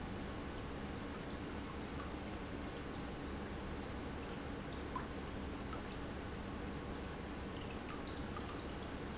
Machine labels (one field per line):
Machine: pump